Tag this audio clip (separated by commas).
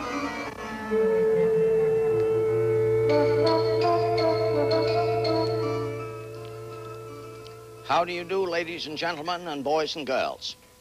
Music